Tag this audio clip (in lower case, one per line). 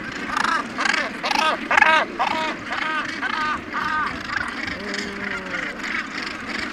wild animals
bird
animal
gull